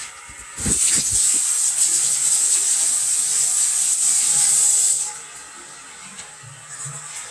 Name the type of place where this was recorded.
restroom